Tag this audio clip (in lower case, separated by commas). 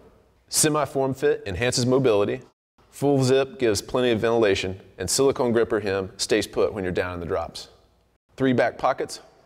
speech